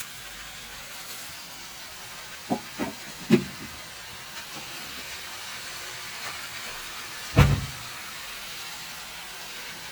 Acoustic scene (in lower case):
kitchen